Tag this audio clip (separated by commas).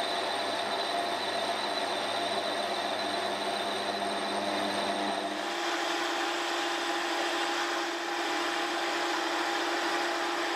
lathe spinning